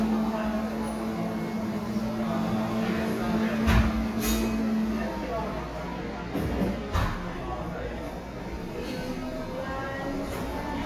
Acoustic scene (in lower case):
cafe